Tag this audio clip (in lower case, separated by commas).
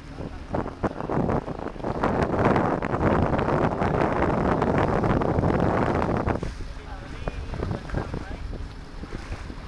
canoe, speech